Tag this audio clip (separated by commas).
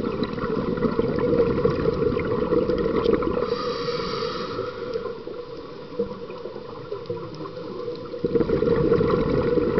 outside, rural or natural